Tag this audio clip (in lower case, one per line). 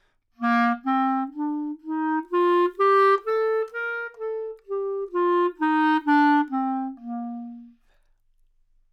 musical instrument
music
woodwind instrument